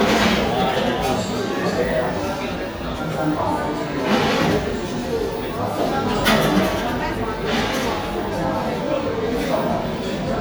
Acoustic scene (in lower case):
cafe